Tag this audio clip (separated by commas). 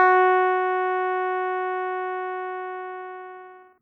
Keyboard (musical), Musical instrument, Music